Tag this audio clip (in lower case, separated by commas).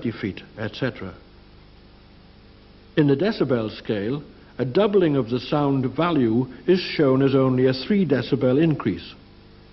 speech